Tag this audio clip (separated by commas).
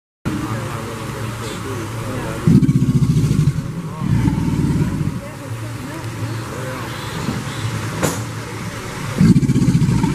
crocodiles hissing